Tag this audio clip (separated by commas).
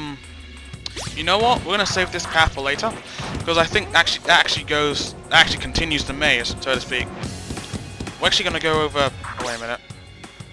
Speech, Music